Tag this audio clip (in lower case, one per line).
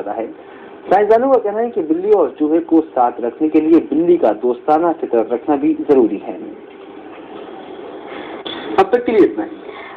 speech